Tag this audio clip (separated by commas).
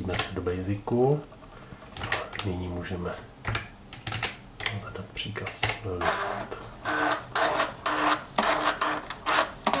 Printer, Speech